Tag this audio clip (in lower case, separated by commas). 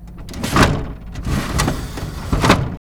domestic sounds, drawer open or close